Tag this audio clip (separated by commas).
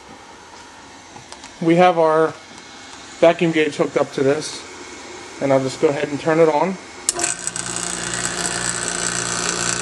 Speech